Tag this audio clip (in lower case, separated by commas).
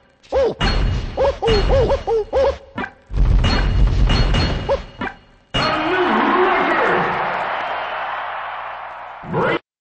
speech